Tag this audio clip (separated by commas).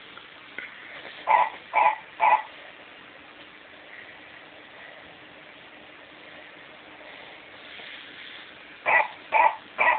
Yip, Dog